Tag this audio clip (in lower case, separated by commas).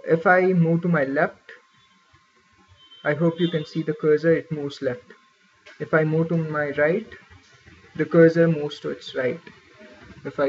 speech